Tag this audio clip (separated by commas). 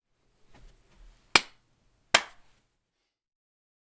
Clapping, Hands